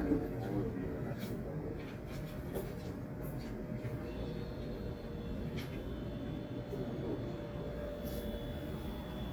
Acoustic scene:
cafe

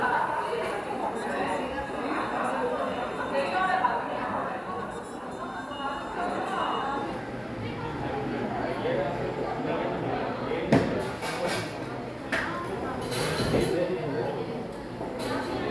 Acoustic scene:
cafe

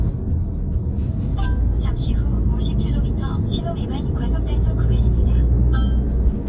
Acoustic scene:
car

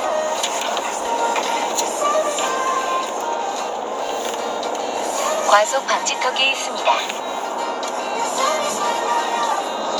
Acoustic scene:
car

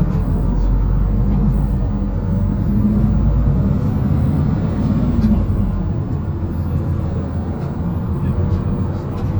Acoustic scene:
bus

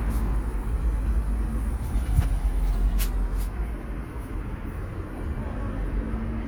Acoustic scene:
residential area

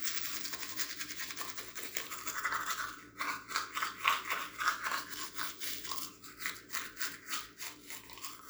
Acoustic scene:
restroom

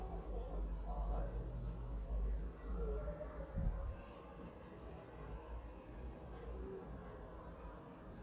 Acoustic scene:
residential area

